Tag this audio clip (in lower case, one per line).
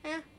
human voice
speech